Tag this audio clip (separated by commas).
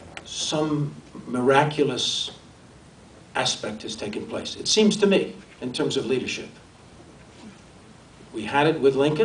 Narration, man speaking, Speech